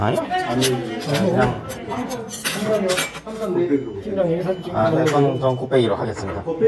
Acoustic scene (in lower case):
restaurant